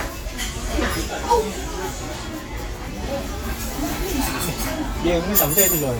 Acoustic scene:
restaurant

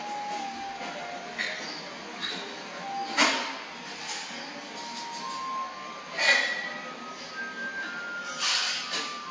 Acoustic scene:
cafe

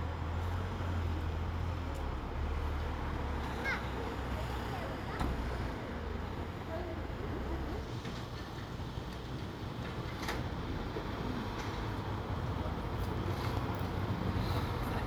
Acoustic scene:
residential area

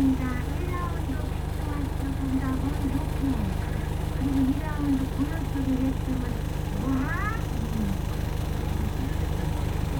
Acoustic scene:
bus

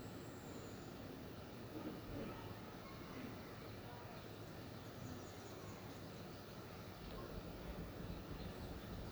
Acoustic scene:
park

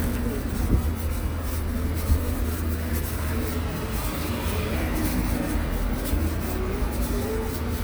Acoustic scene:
street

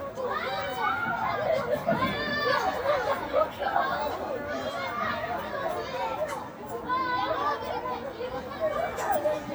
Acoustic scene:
residential area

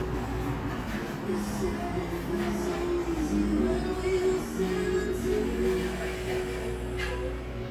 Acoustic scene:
cafe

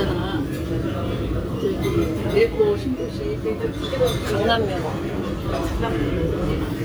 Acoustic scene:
restaurant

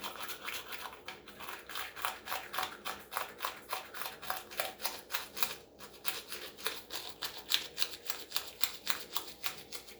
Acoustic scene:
restroom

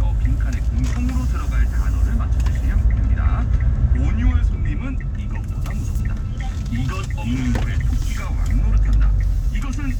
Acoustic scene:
car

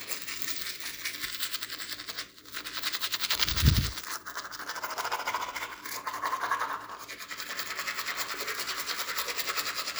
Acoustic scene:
restroom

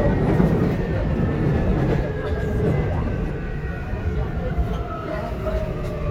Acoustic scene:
subway train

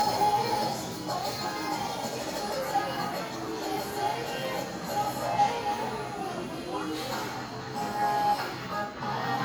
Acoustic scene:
crowded indoor space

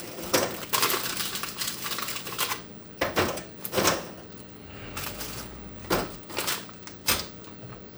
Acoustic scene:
kitchen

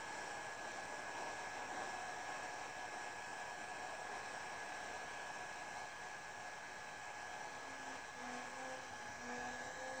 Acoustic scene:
subway train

